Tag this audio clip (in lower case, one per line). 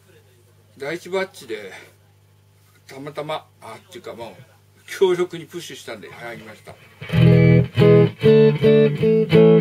music
speech